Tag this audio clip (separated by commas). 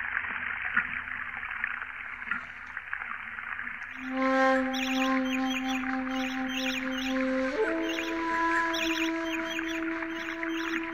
tweet